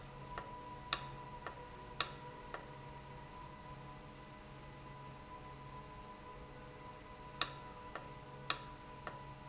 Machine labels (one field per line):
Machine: valve